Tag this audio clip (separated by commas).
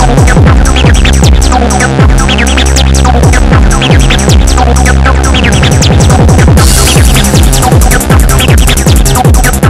Music, Background music